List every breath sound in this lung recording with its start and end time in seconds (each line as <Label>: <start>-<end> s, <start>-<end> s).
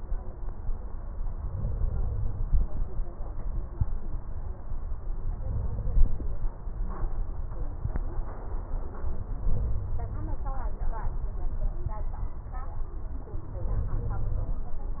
Inhalation: 1.29-2.46 s, 5.27-6.44 s, 9.30-10.47 s, 13.52-14.69 s